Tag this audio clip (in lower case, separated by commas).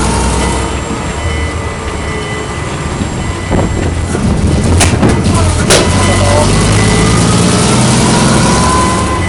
accelerating, vehicle